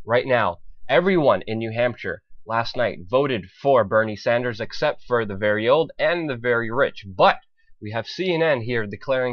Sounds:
speech

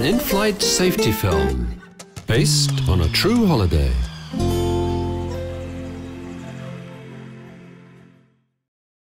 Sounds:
music
speech

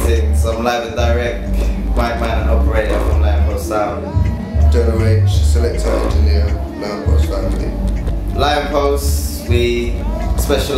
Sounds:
speech
music

